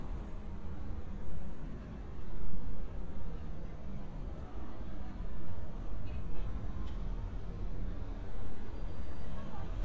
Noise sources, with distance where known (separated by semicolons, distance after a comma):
engine of unclear size; person or small group talking, far